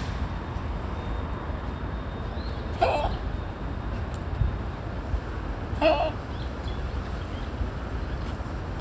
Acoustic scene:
park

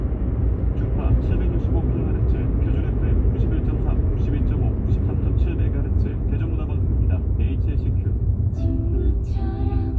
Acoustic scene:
car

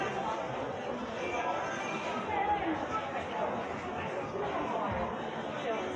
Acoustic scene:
crowded indoor space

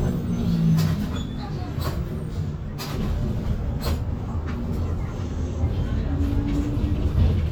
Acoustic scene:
bus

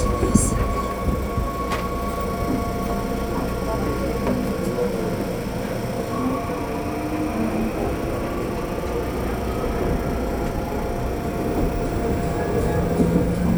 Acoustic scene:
subway train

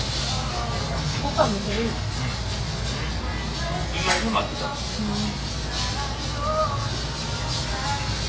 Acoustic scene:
restaurant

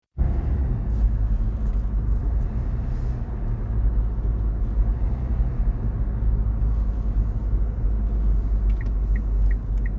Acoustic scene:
car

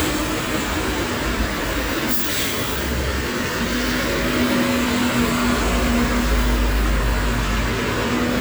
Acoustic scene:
street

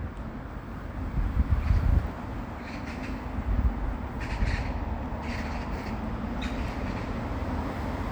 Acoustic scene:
residential area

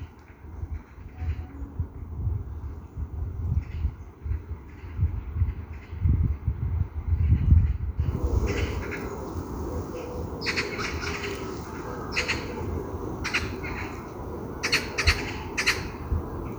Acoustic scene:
park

